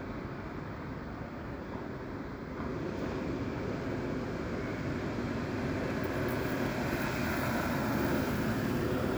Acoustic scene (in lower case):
residential area